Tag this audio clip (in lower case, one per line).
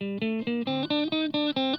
electric guitar
musical instrument
guitar
plucked string instrument
music